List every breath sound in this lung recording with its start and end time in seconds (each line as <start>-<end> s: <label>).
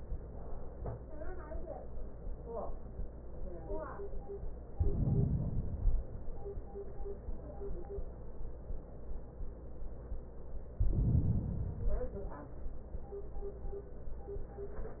4.76-5.81 s: inhalation
5.82-6.86 s: exhalation
10.76-11.80 s: inhalation
11.80-12.84 s: exhalation